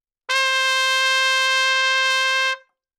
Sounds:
musical instrument
brass instrument
trumpet
music

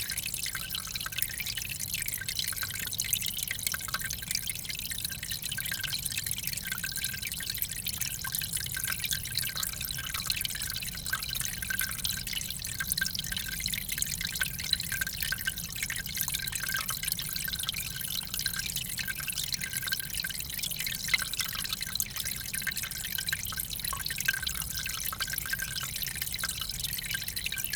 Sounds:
water
stream
trickle
liquid
pour

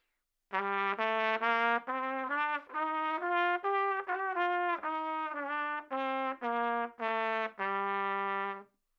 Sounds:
music
brass instrument
trumpet
musical instrument

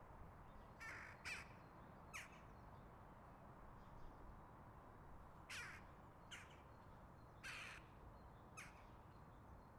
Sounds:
animal
bird
bird call
wild animals

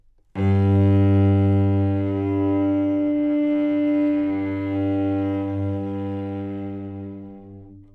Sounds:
musical instrument
music
bowed string instrument

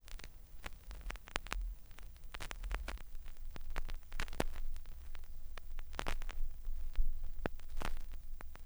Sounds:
crackle

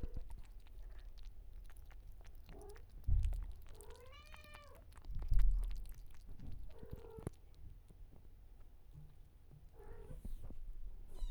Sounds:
cat
domestic animals
meow
animal

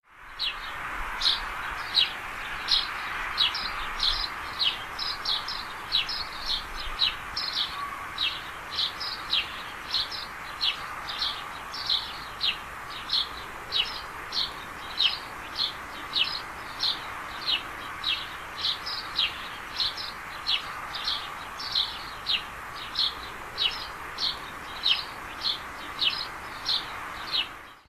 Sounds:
animal
bird vocalization
bird
wild animals

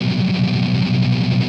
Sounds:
strum
plucked string instrument
music
guitar
musical instrument

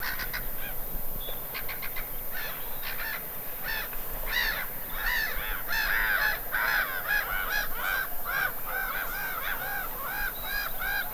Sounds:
gull
wild animals
bird
bird vocalization
animal

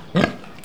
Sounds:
livestock
animal

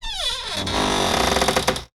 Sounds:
domestic sounds
door
cupboard open or close

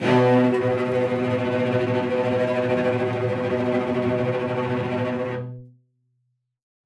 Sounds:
bowed string instrument
musical instrument
music

